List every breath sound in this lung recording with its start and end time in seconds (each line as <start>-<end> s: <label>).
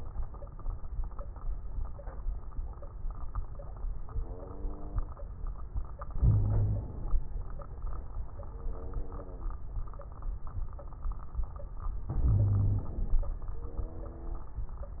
6.18-6.87 s: wheeze
6.18-7.13 s: inhalation
12.09-13.17 s: inhalation
12.19-12.89 s: wheeze